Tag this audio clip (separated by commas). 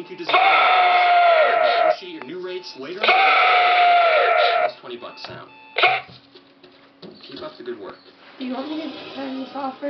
Buzzer, Speech